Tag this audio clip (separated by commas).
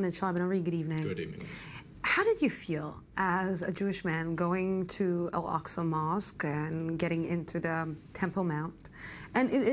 Speech, inside a large room or hall